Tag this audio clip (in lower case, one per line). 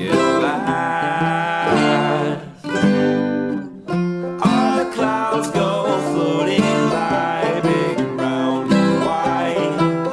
singing